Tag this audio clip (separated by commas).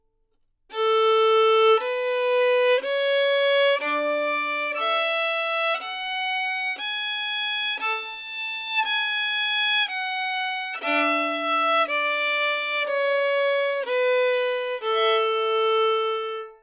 Musical instrument, Bowed string instrument, Music